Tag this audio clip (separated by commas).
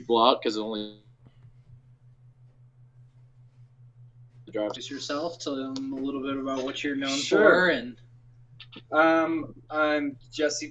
Speech, man speaking